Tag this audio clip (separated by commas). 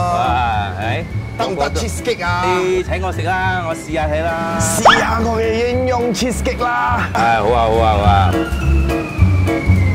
Music, Speech